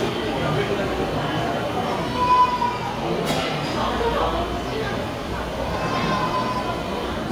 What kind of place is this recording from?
restaurant